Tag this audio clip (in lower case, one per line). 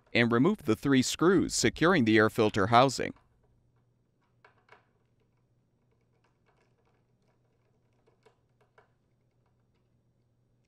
speech